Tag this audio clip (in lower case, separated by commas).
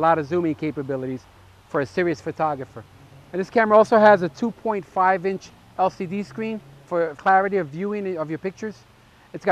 speech